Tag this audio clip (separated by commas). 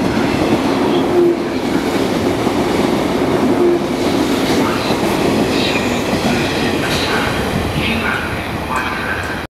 Speech, Vehicle, Train